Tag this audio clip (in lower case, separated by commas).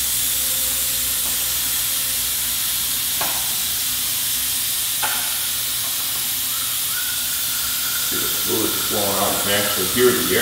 steam, speech, inside a small room